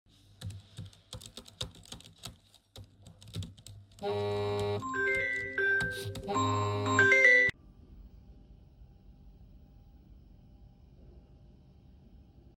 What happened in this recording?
I was completing my assingment and then my phone started ringing.